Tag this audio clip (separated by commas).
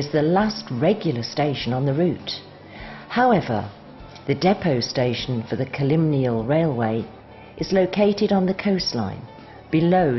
Music, Speech